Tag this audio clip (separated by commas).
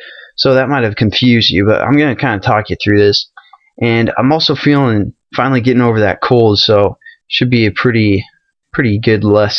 Speech